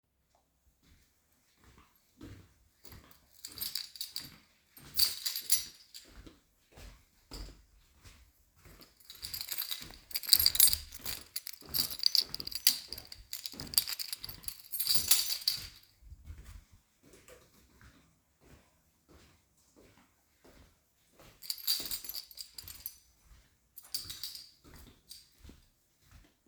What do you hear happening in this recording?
I was pasing around the hallway. I was looking for my friend's room wich was at the end of the hallway.